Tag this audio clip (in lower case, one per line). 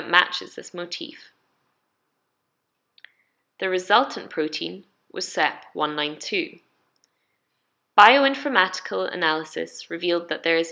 speech